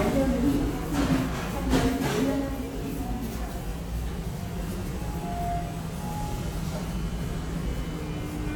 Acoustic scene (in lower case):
subway station